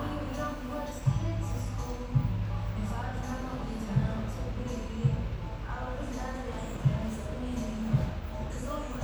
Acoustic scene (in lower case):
cafe